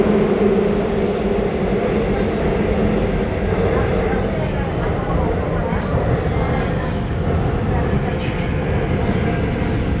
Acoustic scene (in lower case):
subway train